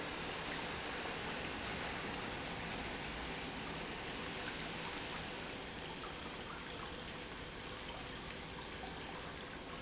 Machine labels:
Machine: pump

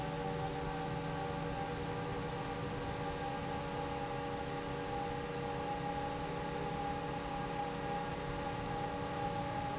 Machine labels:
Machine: fan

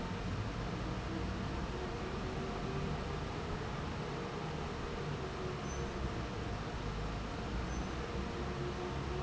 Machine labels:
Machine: fan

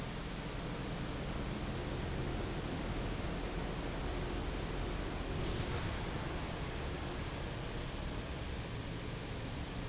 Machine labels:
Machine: fan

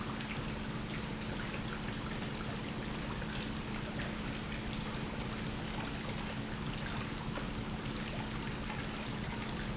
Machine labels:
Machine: pump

